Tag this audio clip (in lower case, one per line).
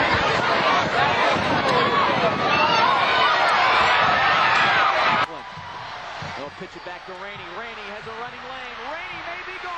speech